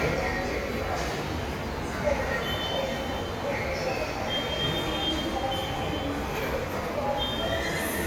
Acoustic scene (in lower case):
subway station